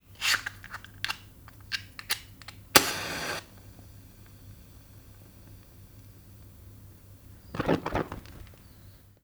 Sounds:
fire

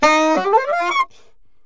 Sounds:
music
musical instrument
woodwind instrument

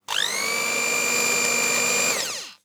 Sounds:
home sounds

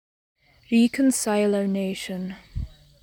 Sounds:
speech
human voice

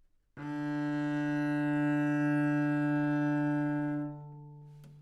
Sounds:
bowed string instrument
music
musical instrument

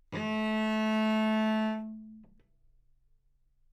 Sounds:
bowed string instrument
music
musical instrument

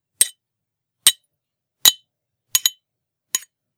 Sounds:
home sounds
cutlery

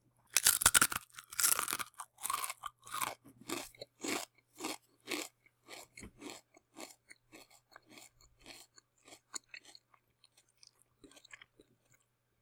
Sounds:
mastication

